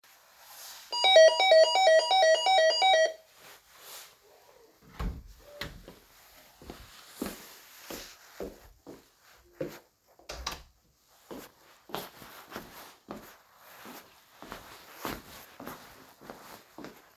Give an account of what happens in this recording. The bell is rung and the door is opened, i entered the apartment and closed the door